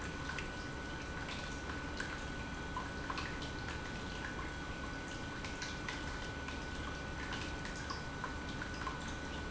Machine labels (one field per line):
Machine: pump